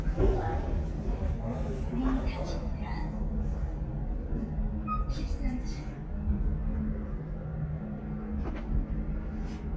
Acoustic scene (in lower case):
elevator